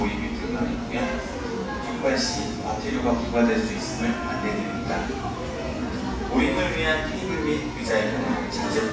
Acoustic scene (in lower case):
cafe